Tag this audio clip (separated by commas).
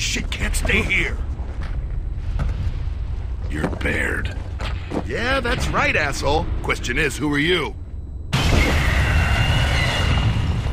Speech